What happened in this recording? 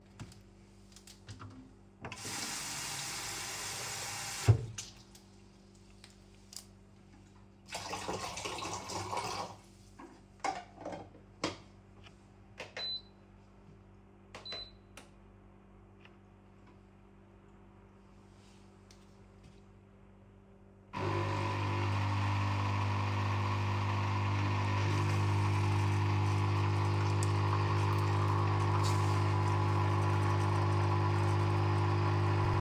I turned on the tap and filled the water tank. Then I closed the water tank lid and turned on the coffee machine to brew a cup of espresso.